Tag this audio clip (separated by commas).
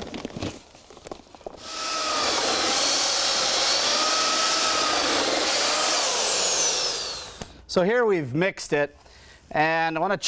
Speech